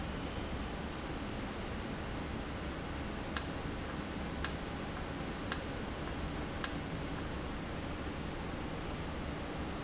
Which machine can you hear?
valve